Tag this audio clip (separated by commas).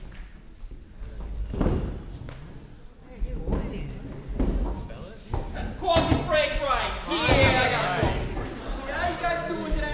Speech